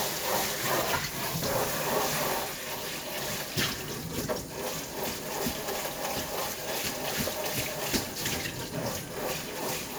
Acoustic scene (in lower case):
kitchen